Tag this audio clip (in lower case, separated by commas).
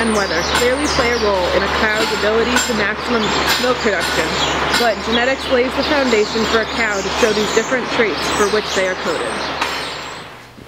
speech